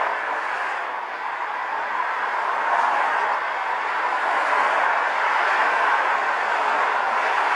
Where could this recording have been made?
on a street